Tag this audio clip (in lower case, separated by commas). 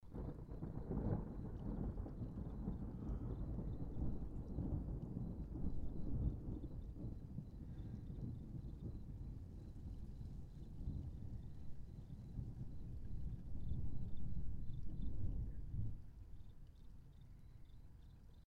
thunder, thunderstorm